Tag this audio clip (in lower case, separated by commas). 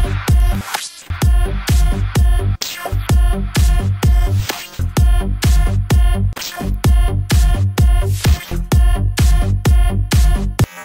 electronic dance music, house music